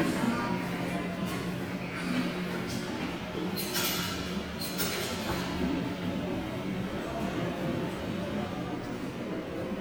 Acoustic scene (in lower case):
subway station